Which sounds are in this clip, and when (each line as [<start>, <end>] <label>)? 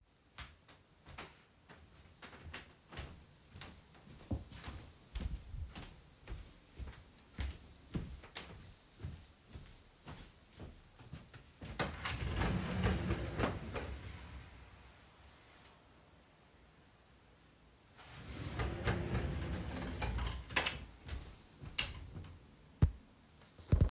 [0.34, 11.73] footsteps
[11.56, 14.97] wardrobe or drawer
[17.97, 20.85] wardrobe or drawer